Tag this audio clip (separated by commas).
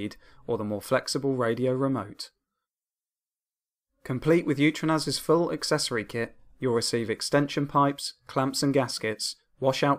Speech